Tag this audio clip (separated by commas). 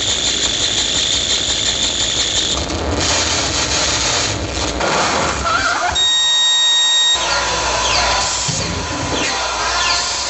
Cacophony